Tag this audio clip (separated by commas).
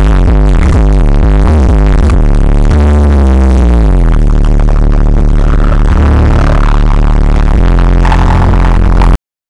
Music